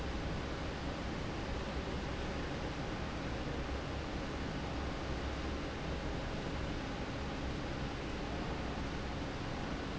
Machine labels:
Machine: fan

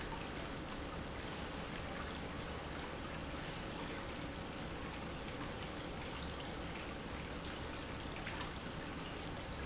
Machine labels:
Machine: pump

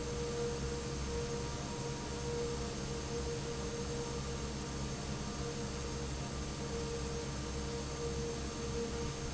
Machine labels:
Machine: fan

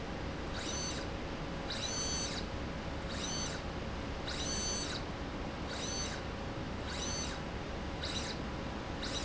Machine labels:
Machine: slide rail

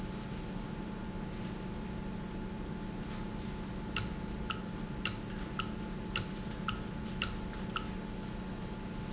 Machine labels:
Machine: valve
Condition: normal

